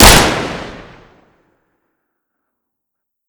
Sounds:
Explosion, gunfire

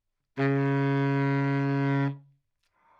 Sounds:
Music, Wind instrument, Musical instrument

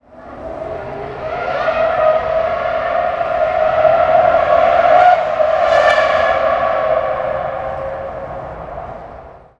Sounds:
Race car, Vehicle, Motor vehicle (road), Car

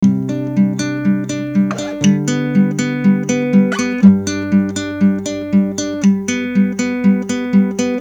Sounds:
Music, Acoustic guitar, Musical instrument, Plucked string instrument, Guitar

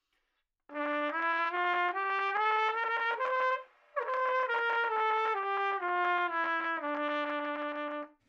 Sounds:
Brass instrument, Musical instrument, Trumpet, Music

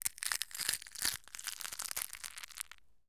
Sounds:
Crushing

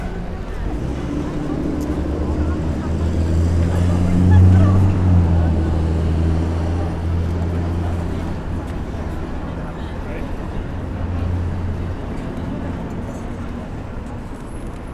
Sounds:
Car passing by, Vehicle, Motor vehicle (road), Car

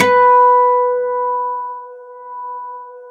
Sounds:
Plucked string instrument, Acoustic guitar, Music, Guitar, Musical instrument

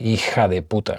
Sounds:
Speech, man speaking, Human voice

